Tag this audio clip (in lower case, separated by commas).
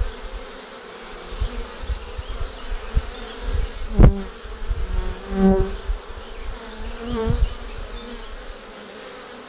bee